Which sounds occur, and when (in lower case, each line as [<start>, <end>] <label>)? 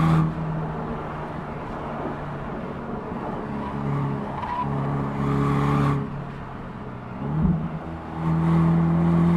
[0.00, 0.31] accelerating
[0.00, 9.35] car
[3.50, 3.89] tire squeal
[4.28, 4.63] tire squeal
[4.58, 5.92] accelerating
[5.20, 5.94] tire squeal
[6.11, 6.53] generic impact sounds
[7.16, 7.73] accelerating
[7.20, 7.50] generic impact sounds
[7.64, 7.93] generic impact sounds
[8.14, 9.35] accelerating